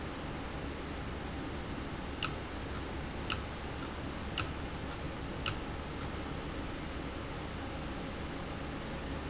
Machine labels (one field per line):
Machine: valve